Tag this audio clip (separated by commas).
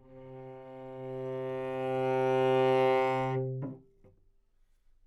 Bowed string instrument, Musical instrument, Music